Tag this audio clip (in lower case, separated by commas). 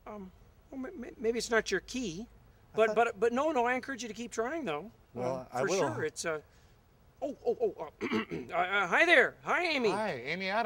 speech